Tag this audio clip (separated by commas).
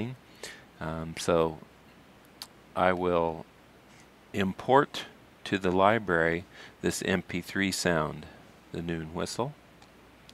Speech